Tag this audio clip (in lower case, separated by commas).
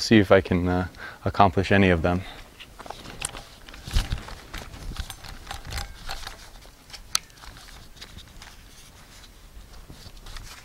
speech